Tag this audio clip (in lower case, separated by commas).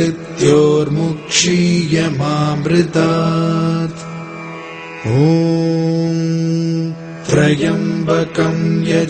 mantra